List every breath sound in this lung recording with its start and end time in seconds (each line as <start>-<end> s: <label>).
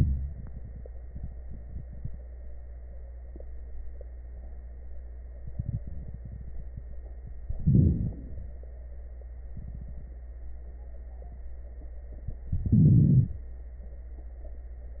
7.48-8.63 s: inhalation
7.48-8.63 s: crackles
12.49-13.46 s: inhalation
12.49-13.46 s: crackles